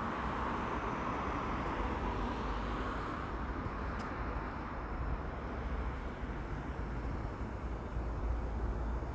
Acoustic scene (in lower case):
street